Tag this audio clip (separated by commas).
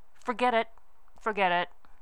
Human voice, Speech, woman speaking